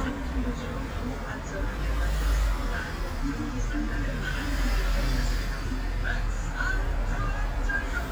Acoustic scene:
bus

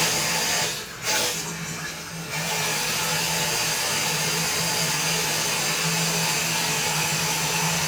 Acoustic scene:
restroom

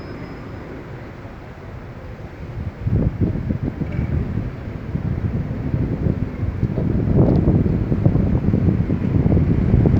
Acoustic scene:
street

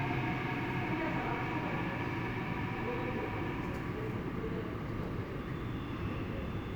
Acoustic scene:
subway station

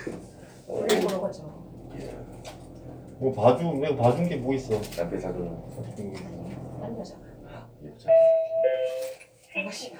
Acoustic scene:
elevator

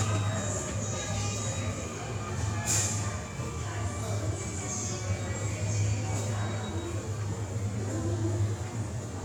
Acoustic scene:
subway station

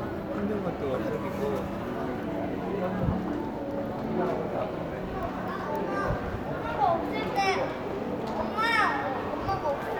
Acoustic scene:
crowded indoor space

